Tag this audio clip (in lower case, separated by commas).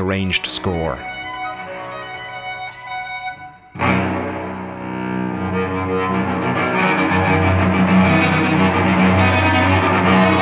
double bass, cello, bowed string instrument